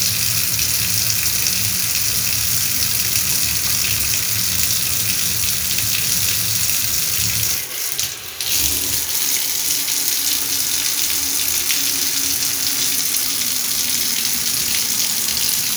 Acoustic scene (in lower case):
restroom